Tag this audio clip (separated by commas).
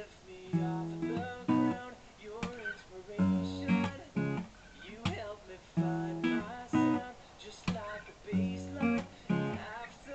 Strum, Musical instrument, Acoustic guitar, Music, Plucked string instrument, Guitar